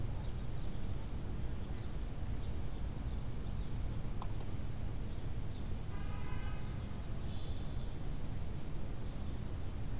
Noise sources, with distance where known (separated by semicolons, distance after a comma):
car horn